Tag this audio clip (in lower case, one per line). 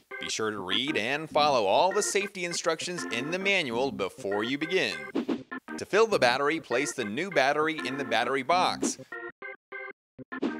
music
speech